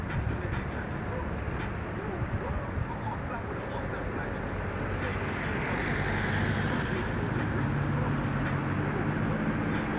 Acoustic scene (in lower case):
street